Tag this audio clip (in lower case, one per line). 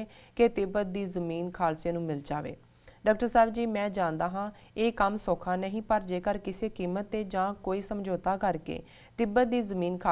speech